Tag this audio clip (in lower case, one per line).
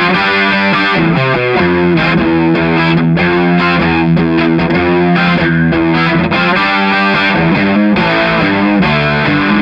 music
distortion